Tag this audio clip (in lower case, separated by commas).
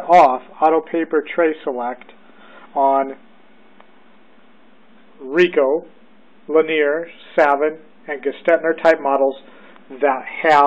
speech